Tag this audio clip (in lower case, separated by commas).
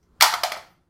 telephone, alarm